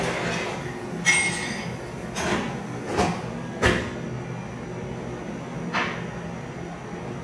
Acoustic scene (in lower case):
cafe